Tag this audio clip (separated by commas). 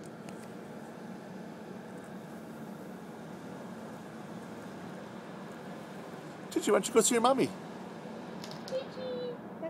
Speech